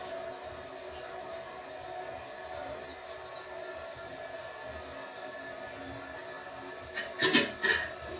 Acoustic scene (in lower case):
restroom